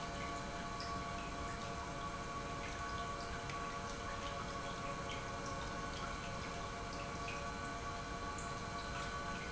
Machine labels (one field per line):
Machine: pump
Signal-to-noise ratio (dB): 0 dB